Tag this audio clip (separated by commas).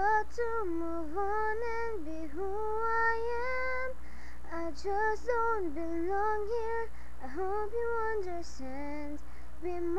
Child singing, Female singing